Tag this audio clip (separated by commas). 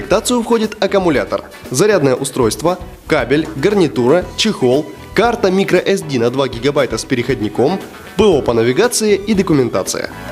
Music, Speech